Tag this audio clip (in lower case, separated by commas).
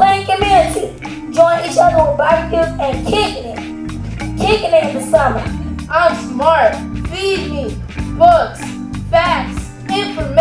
speech, music